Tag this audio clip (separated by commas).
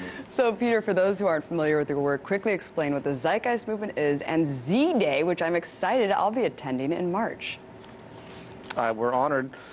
Speech